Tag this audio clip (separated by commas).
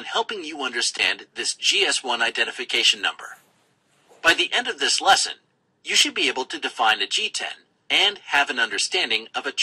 Speech